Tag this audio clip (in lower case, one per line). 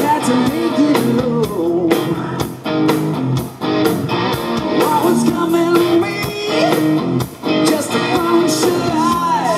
echo
music